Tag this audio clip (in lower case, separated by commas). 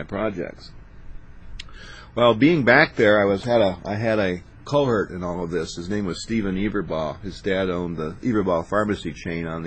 speech